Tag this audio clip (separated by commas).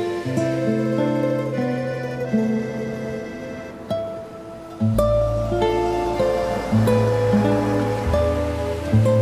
Music